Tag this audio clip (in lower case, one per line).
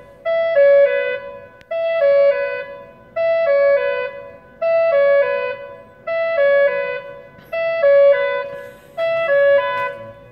wind instrument
music